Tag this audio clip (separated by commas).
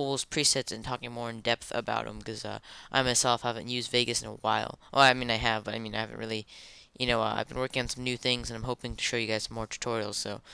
Speech